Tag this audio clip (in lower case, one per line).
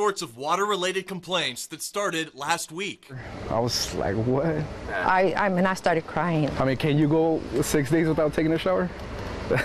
speech